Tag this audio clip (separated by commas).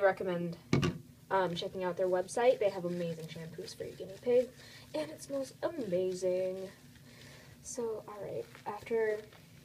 Speech